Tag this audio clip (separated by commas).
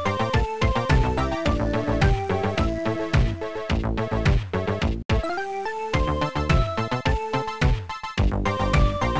Music